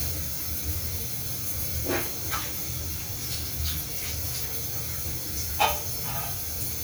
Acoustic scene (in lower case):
restroom